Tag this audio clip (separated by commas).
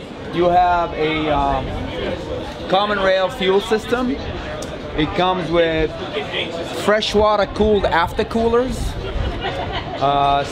Speech